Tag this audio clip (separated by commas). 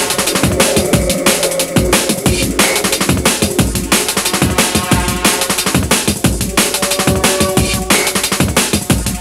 Bass drum, Drum kit, Music, Drum, Musical instrument